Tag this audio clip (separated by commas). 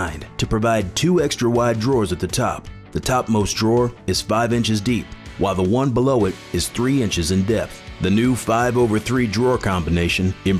Speech, Music